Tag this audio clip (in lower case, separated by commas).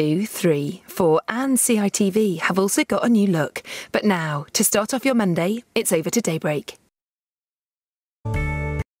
music, speech